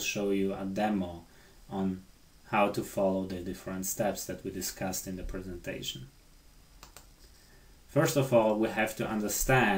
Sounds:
Speech

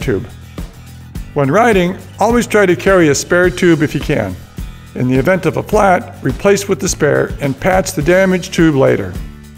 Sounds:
Speech, Music

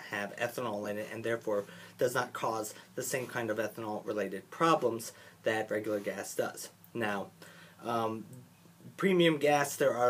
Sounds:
Speech

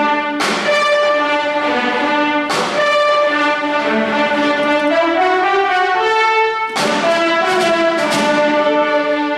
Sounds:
Music, inside a large room or hall, Orchestra

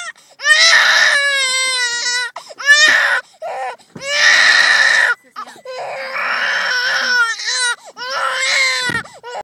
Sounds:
baby crying, Baby cry

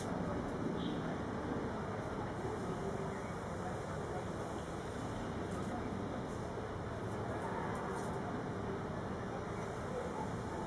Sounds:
Speech, Bird

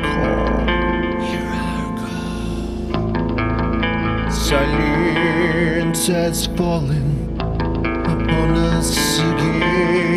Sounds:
Music

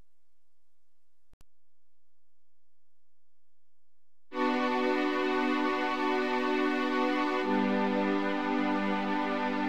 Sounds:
Music

